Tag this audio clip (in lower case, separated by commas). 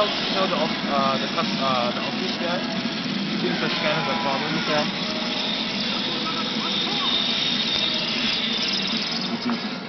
speech